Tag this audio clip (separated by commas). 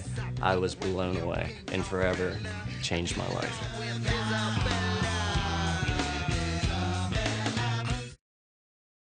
Speech, Music